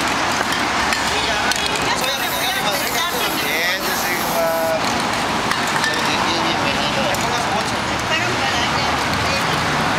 Clicking and spraying, people talk, traffic passes